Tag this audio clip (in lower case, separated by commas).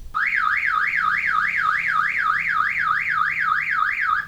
motor vehicle (road), vehicle, alarm, car